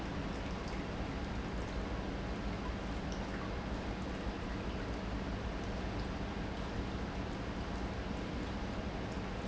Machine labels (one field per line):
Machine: pump